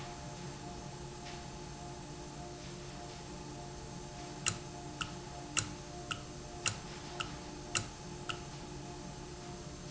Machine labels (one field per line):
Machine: valve